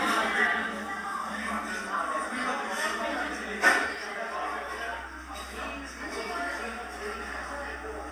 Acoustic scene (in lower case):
crowded indoor space